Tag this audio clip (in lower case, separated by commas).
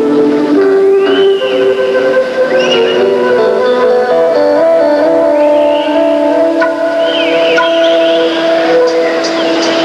music